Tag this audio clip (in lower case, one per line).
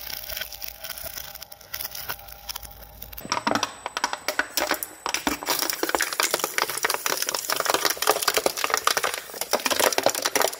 plastic bottle crushing